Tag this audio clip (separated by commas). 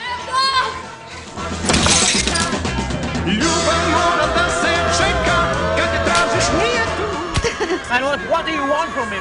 Speech, Male singing, Music